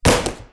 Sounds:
thud

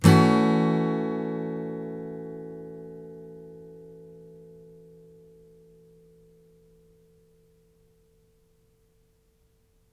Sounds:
strum
plucked string instrument
music
guitar
musical instrument

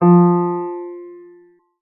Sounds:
musical instrument
piano
music
keyboard (musical)

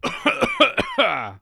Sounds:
cough
respiratory sounds

